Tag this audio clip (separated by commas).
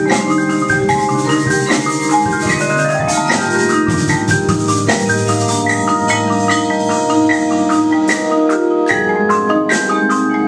Vibraphone, Musical instrument, playing marimba, Percussion, xylophone, Music